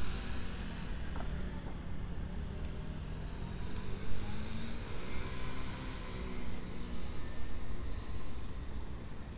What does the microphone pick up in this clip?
small-sounding engine